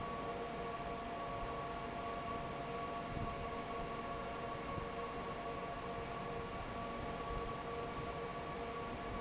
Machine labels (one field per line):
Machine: fan